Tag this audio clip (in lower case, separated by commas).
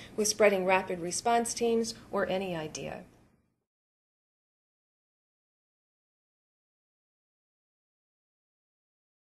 speech